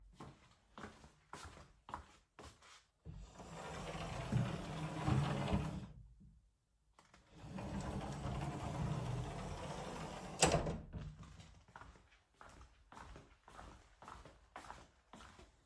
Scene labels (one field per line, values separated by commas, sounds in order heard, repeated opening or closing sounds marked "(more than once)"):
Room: bedroom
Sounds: footsteps, wardrobe or drawer (more than once)